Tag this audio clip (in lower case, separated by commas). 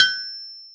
tools